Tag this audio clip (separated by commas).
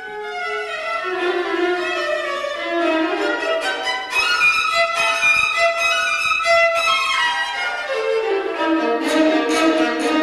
Musical instrument, fiddle, Music